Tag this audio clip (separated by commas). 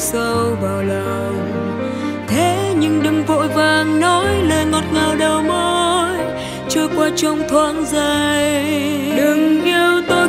Background music, Happy music, Music